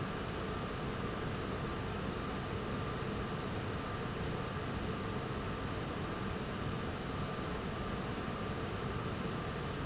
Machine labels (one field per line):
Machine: fan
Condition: abnormal